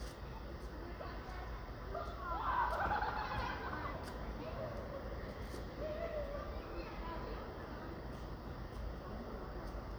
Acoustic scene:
residential area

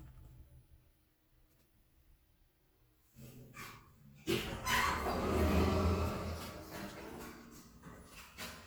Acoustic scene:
elevator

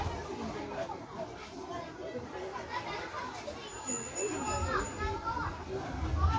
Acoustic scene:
park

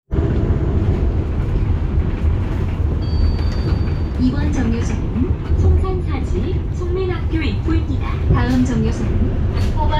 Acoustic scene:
bus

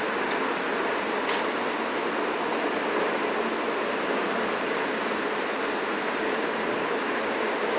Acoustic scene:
street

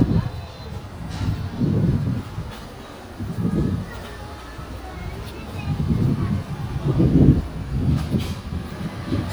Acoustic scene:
residential area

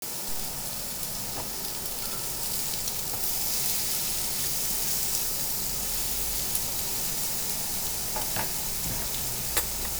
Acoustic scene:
restaurant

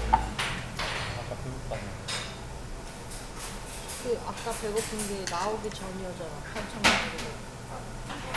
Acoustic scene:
restaurant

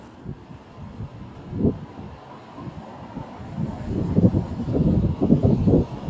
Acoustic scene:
street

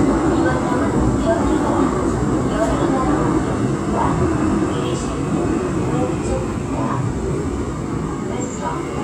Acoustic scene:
subway train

